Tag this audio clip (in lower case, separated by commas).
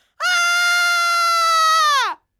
human voice, screaming